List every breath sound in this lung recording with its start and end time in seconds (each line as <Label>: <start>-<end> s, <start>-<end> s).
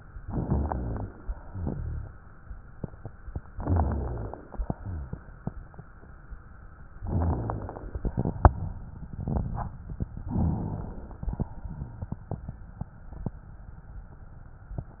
Inhalation: 0.16-1.32 s, 3.42-4.70 s, 6.95-7.96 s, 10.21-11.29 s
Exhalation: 1.34-2.50 s, 4.67-5.85 s, 7.97-10.08 s, 11.30-12.81 s